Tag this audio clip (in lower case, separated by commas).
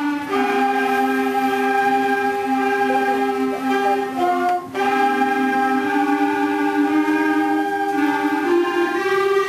music